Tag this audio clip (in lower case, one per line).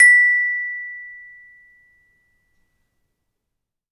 percussion
marimba
music
mallet percussion
musical instrument